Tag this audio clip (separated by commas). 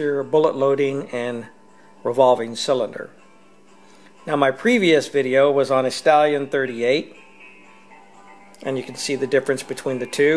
Music, Speech